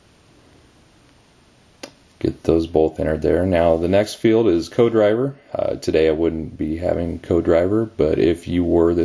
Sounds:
speech

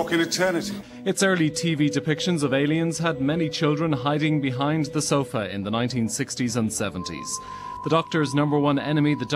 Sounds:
music
speech

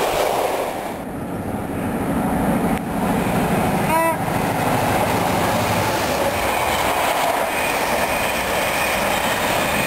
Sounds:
train whistling

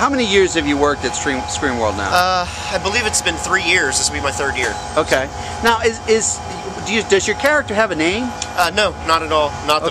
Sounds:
speech

